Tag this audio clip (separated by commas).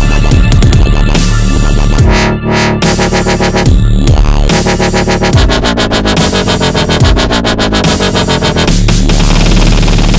Music, Dubstep, Electronic music